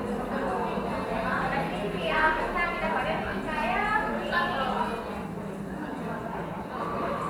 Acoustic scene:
cafe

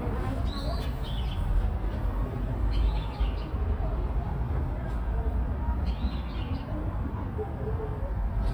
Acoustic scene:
park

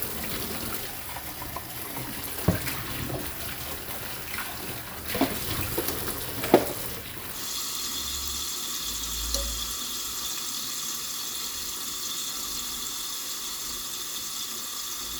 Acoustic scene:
kitchen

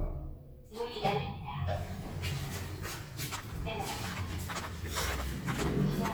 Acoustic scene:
elevator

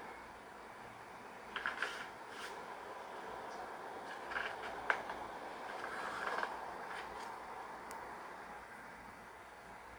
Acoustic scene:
street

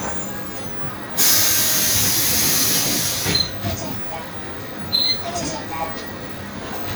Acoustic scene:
bus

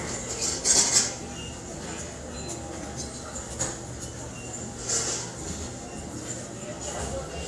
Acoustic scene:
subway station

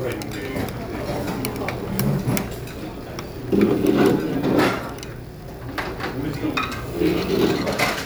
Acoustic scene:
restaurant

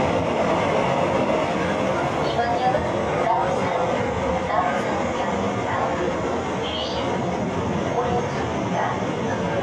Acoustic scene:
subway train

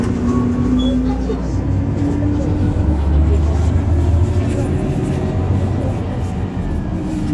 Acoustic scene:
bus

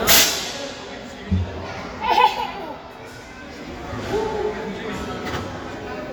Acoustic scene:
crowded indoor space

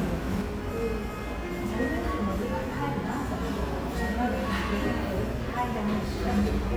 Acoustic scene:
cafe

